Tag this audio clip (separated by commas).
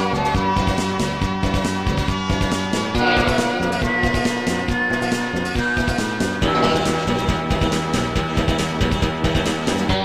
Music